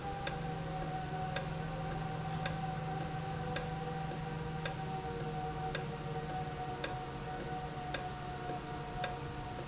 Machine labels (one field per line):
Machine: valve